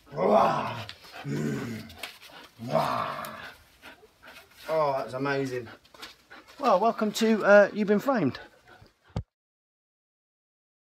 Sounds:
dog, animal, speech

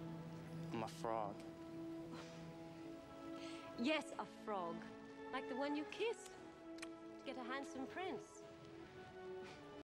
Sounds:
music, speech

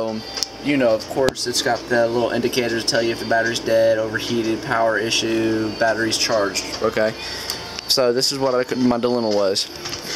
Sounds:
speech, music

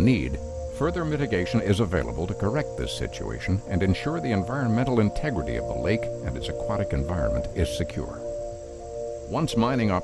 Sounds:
music, speech

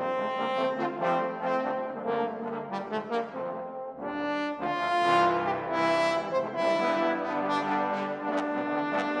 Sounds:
musical instrument, trombone, music, inside a large room or hall, orchestra

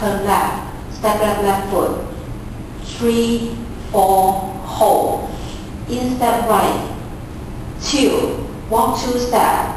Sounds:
speech

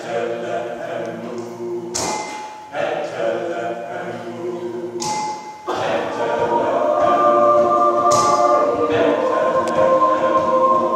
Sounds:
a capella

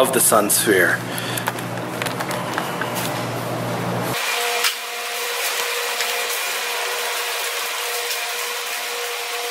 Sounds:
inside a large room or hall, speech

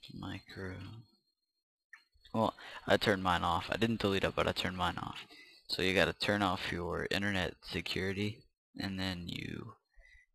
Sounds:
speech

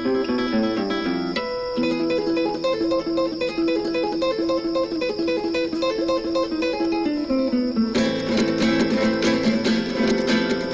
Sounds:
strum, plucked string instrument, musical instrument, music, guitar

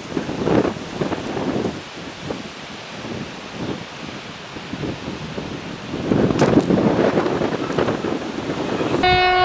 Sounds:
rail transport, train horn, train, vehicle, railroad car

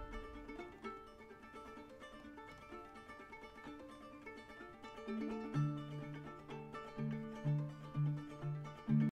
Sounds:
music

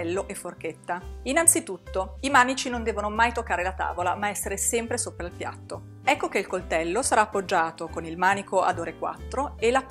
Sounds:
music, speech

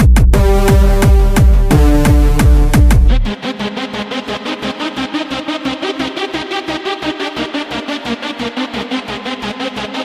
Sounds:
music

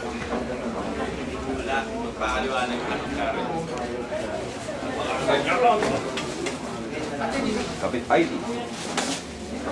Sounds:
speech

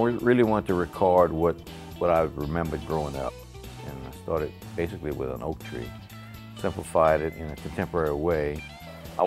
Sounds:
music, speech

